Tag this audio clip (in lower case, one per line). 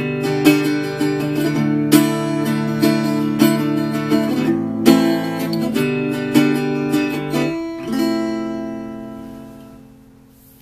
acoustic guitar
musical instrument
plucked string instrument
guitar
music